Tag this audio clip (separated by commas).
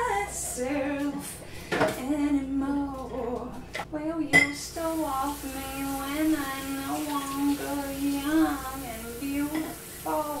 Sink (filling or washing), Water, dishes, pots and pans